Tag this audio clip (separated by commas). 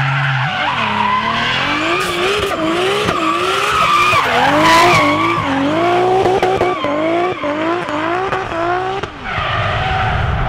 Vehicle, auto racing, Skidding, Car